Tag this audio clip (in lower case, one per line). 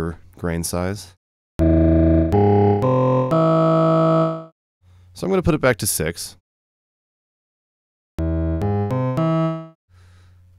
speech
music
sampler
musical instrument